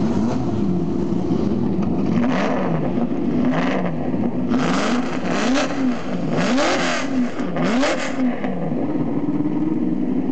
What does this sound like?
Acceleration reviving of a speed engine